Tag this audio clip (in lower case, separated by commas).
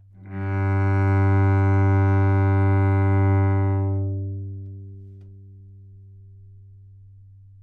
music, musical instrument, bowed string instrument